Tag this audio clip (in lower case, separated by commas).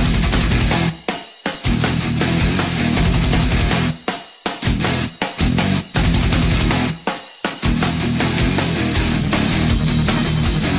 music